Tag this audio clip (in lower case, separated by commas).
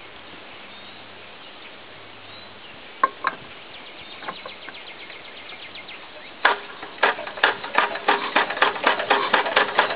engine starting